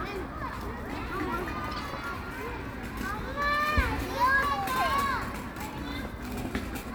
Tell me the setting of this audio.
park